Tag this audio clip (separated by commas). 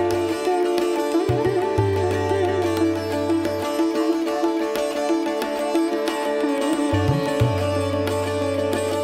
playing sitar